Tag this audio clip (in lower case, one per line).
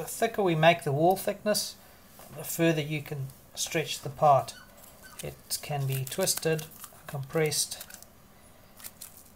speech